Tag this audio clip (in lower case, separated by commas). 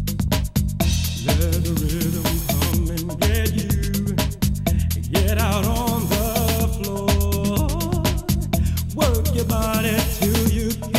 music, funk